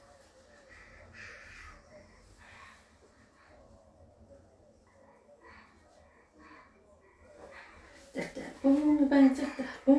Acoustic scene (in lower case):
restroom